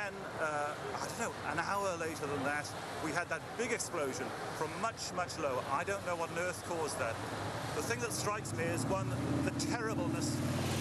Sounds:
Speech

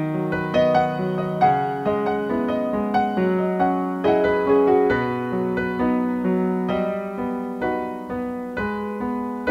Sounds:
Music, Electric piano, Musical instrument, Piano, Keyboard (musical)

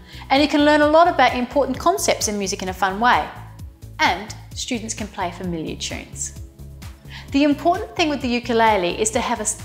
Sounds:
Music, Speech

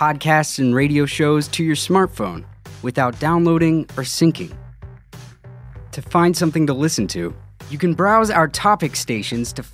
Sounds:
Speech, Music

